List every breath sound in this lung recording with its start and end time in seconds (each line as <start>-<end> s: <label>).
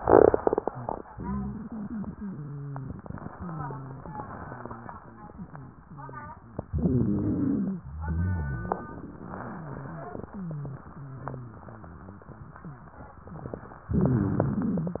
1.14-2.90 s: wheeze
3.40-6.40 s: wheeze
6.70-7.80 s: inhalation
6.70-7.80 s: wheeze
7.84-13.75 s: wheeze
13.93-15.00 s: inhalation
13.93-15.00 s: wheeze